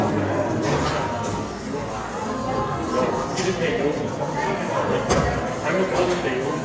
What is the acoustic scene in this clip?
cafe